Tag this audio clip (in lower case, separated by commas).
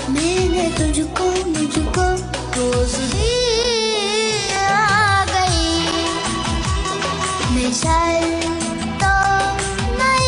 child singing